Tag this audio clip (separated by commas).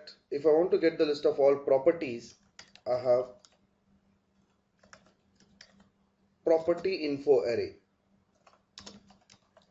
Speech, Clicking, inside a small room